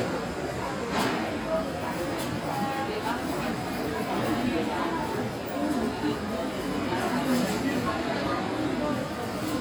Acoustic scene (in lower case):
crowded indoor space